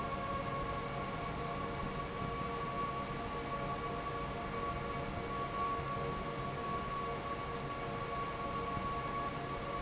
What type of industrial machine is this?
fan